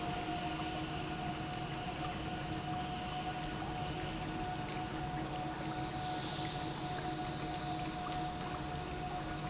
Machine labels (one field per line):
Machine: pump